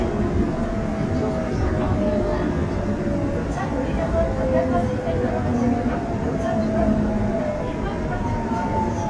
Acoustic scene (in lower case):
subway train